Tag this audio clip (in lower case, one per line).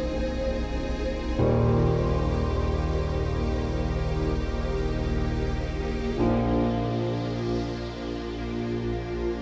music